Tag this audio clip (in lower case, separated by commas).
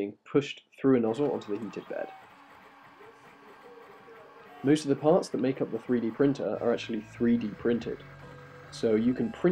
speech, printer, music